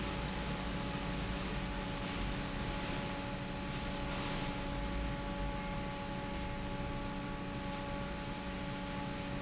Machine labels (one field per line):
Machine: fan